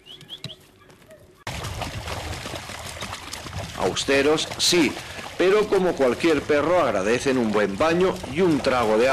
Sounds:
speech, animal

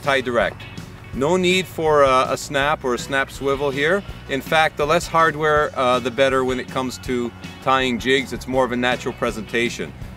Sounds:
music, speech

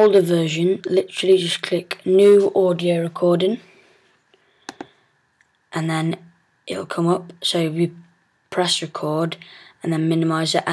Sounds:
inside a small room, speech

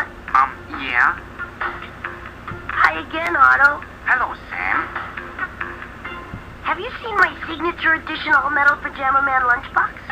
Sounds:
speech, music

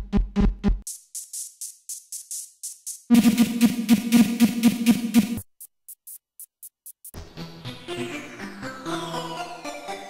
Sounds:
music, sampler

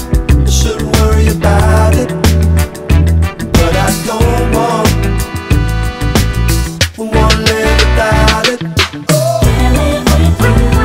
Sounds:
afrobeat

